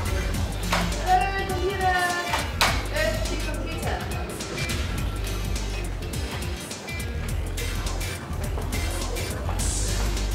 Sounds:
Speech, Music

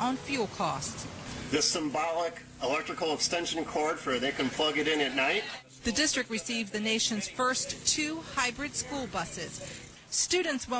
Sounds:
Speech

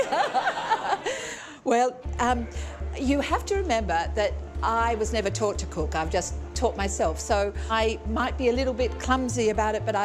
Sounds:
Music, Speech

